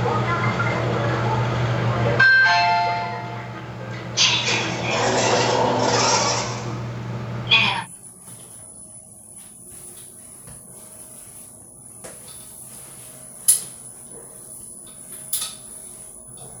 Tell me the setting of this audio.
elevator